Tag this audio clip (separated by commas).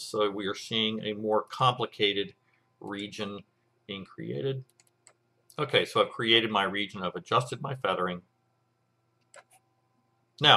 Speech